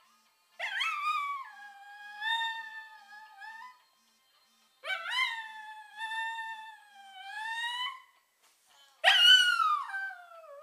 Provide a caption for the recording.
A small dog is howling